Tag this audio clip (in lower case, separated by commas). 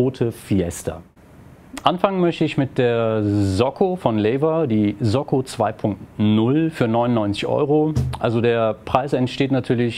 speech